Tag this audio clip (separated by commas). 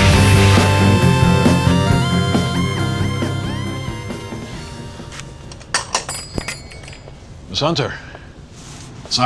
Speech, Music